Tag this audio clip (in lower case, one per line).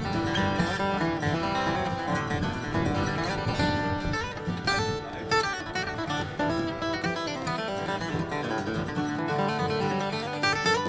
plucked string instrument
musical instrument
speech
music
guitar
acoustic guitar